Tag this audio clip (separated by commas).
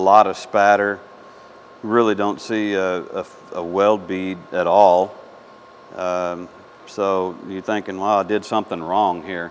arc welding